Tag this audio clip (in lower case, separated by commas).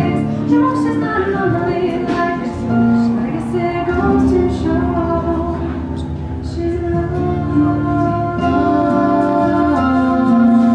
guitar, harp, music